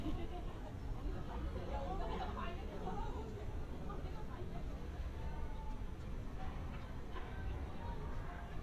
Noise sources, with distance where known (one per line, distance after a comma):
person or small group talking, far